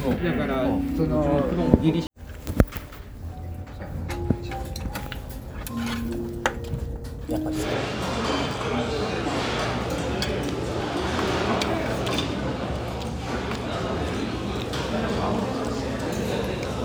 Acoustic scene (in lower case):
restaurant